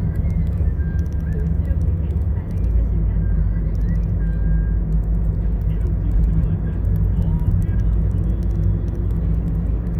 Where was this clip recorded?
in a car